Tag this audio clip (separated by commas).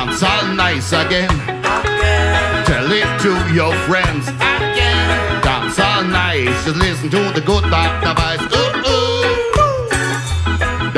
Music